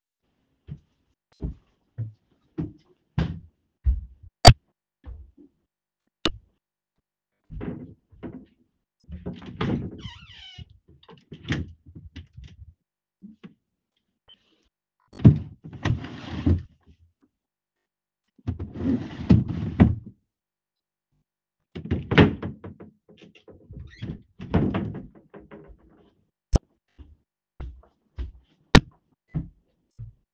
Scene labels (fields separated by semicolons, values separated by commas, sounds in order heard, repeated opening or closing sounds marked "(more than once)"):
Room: bedroom; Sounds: footsteps, wardrobe or drawer (more than once)